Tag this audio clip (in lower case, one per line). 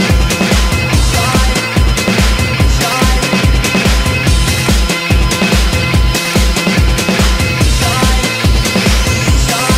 music